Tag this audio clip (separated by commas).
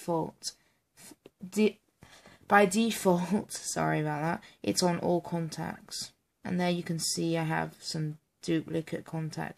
inside a small room, Speech